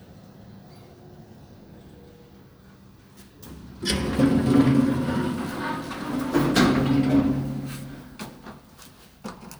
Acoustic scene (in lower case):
elevator